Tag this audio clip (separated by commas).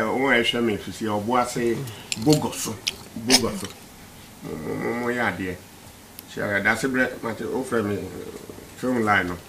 Speech